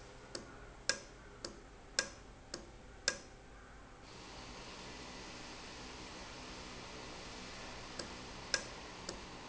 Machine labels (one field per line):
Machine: valve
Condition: normal